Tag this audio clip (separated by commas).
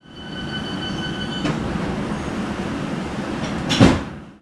home sounds, Slam, Door